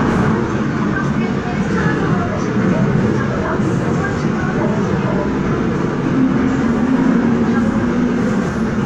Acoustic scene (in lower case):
subway train